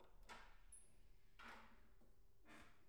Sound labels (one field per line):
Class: door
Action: opening